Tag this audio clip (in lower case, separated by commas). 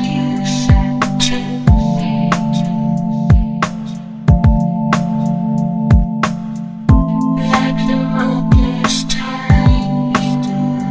music